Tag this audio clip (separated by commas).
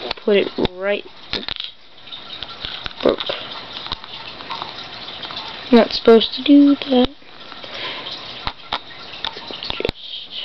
Speech